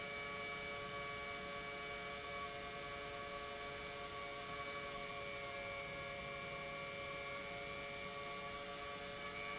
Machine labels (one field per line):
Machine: pump